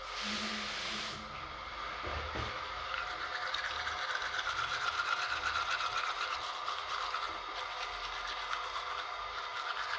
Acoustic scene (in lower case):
restroom